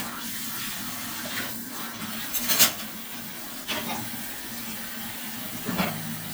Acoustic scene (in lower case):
kitchen